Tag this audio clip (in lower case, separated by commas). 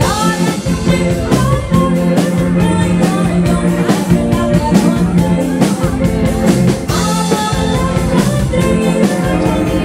music, female singing